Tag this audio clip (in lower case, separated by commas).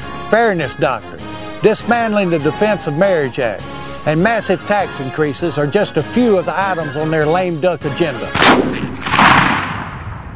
music, speech